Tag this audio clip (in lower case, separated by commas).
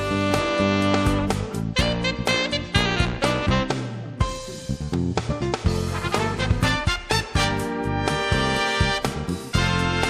music